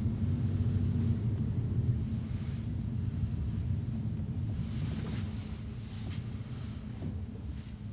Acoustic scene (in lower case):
car